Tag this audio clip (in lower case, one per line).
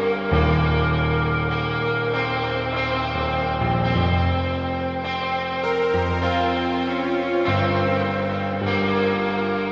music